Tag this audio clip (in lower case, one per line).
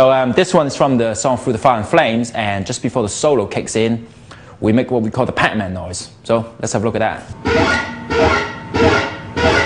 guitar
musical instrument
music